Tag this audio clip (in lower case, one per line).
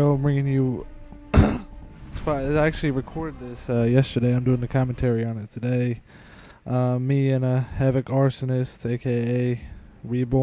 speech